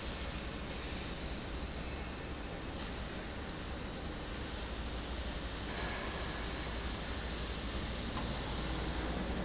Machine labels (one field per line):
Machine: fan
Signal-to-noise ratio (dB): -6 dB